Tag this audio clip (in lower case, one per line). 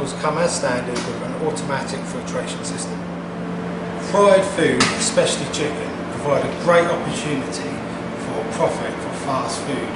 speech